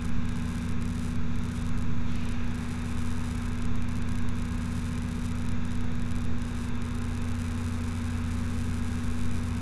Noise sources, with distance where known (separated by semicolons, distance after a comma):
engine of unclear size, near